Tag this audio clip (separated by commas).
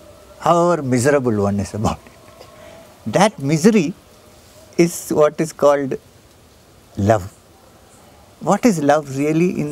Speech